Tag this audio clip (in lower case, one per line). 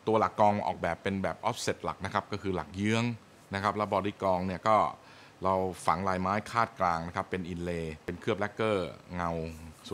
speech